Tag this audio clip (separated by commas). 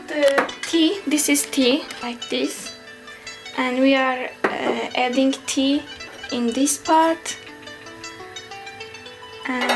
Music, Speech